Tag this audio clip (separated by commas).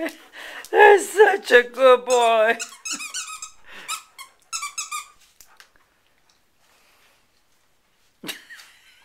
Breathing, Speech